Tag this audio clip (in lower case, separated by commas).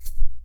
music, percussion, rattle (instrument), musical instrument